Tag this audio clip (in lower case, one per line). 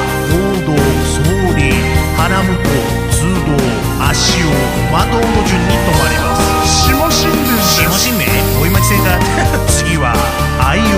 speech
music